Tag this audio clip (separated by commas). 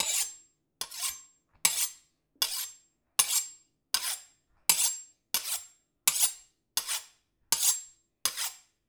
Cutlery, Domestic sounds